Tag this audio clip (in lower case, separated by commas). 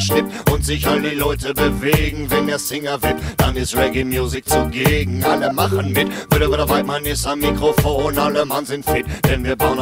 music